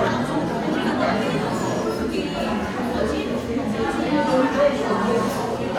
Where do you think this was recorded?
in a crowded indoor space